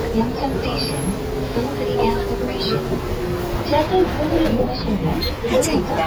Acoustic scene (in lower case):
bus